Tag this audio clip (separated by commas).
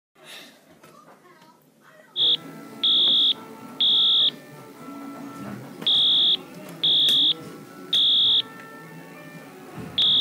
Music, Speech, Fire alarm